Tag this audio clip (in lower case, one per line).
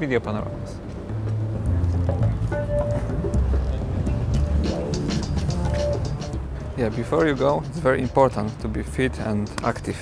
speech
music